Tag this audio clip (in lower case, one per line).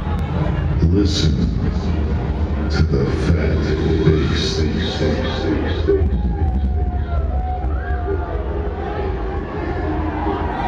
speech